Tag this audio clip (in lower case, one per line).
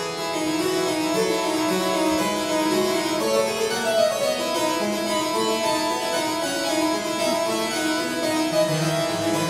music
harpsichord